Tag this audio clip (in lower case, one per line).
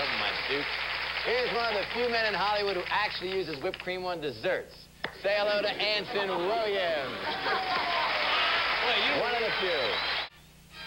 speech